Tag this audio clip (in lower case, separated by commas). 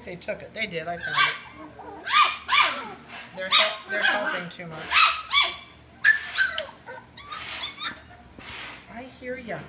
domestic animals, speech, animal, dog